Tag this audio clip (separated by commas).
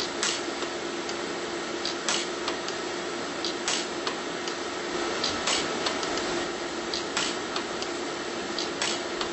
arc welding